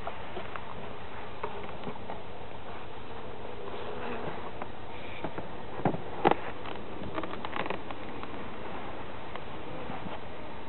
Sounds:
Insect, bee or wasp, wasp

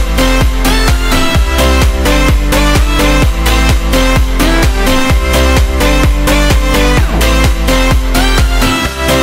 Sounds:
Music

